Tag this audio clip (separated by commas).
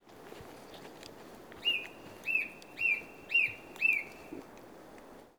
Bird, Animal, Wild animals